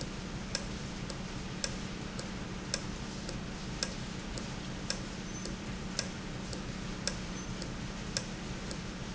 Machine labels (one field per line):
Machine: valve